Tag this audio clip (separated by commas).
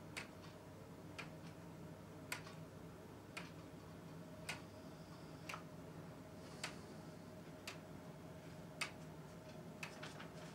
Tick-tock